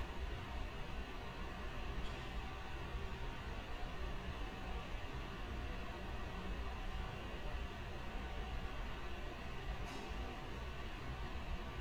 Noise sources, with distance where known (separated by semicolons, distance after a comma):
background noise